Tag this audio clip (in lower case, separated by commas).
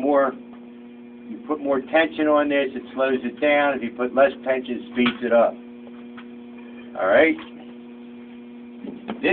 speech